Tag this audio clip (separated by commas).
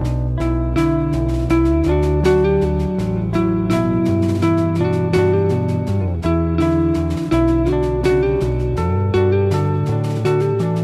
Music, inside a small room